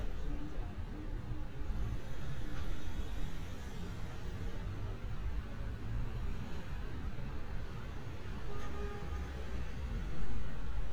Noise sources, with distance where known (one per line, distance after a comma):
large-sounding engine
car horn, far
person or small group talking, far